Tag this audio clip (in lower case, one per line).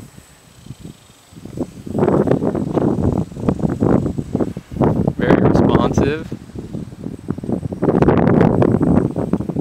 speech
wind